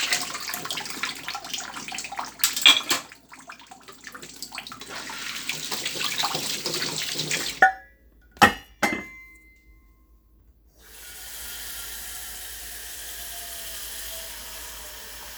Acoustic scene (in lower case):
kitchen